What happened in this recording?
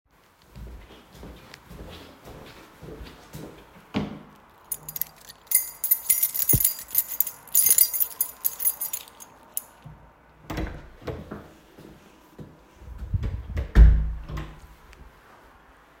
I walked through the hallway toward a door. Before opening the door, I briefly searched for the correct key. After finding it, I unlocked the door,opened it and closed the door.